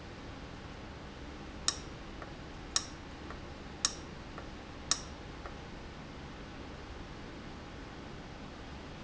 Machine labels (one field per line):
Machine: valve